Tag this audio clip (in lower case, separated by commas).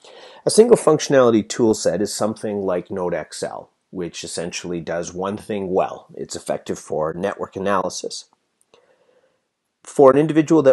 speech